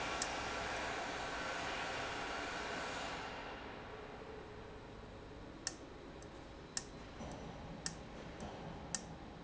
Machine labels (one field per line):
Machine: valve